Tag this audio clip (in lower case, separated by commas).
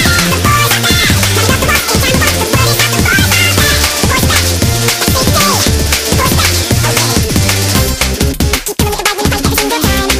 music